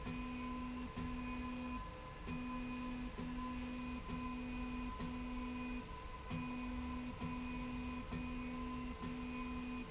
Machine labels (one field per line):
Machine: slide rail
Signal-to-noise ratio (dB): 6 dB